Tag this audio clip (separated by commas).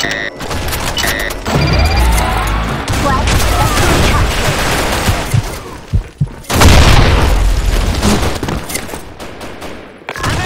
Fusillade